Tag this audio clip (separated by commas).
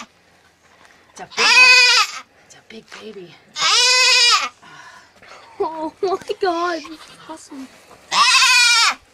Domestic animals, Animal, Goat, Sheep, Speech, Bleat